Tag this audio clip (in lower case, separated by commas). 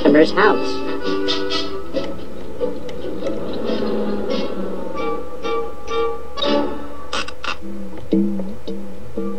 music, speech